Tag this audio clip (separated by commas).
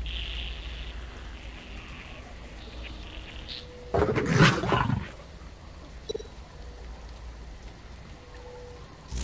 Roar